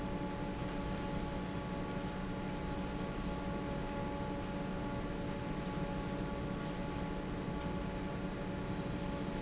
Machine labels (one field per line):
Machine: fan